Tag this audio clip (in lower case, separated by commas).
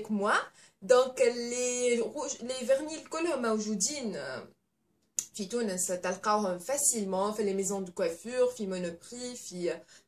speech